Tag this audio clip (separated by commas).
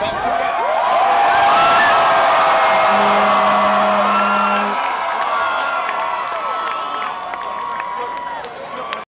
Speech